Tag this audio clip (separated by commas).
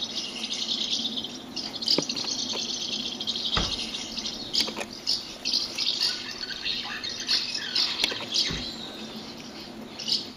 barn swallow calling